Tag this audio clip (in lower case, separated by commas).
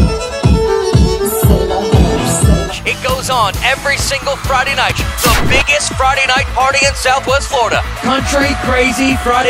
music, exciting music, happy music